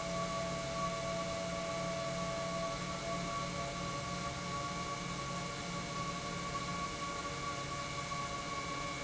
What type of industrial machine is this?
pump